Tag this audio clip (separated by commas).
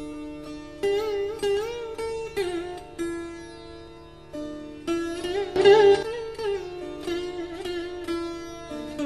Guitar, Music, Plucked string instrument, Musical instrument, Strum